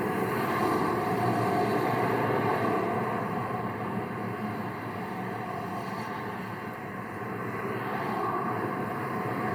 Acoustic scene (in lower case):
street